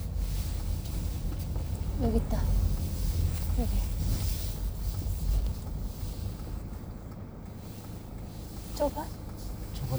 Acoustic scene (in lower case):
car